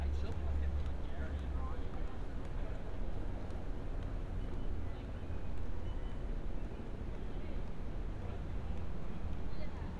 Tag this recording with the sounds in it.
person or small group talking